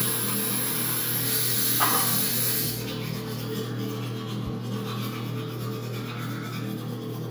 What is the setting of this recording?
restroom